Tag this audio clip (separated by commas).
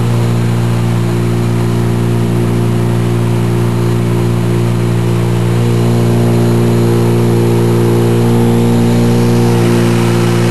Medium engine (mid frequency)